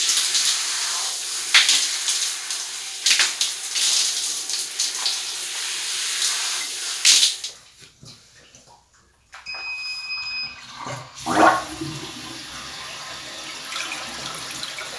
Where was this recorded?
in a restroom